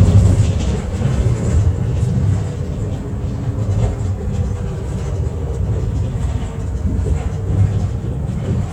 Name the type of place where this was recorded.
bus